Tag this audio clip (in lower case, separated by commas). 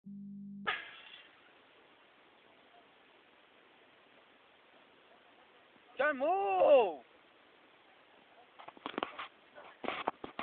outside, rural or natural, speech